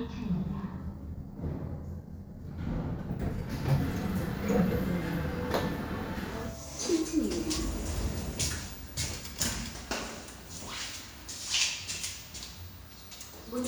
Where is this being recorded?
in an elevator